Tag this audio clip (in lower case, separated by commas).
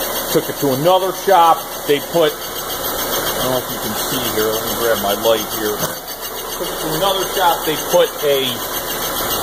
speech, inside a large room or hall